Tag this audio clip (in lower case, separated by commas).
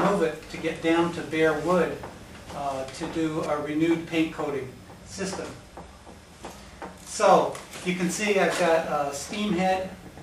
speech